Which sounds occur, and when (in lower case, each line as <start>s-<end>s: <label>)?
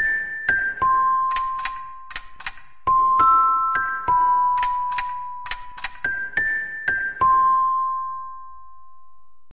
0.0s-9.5s: ringtone
5.7s-5.9s: generic impact sounds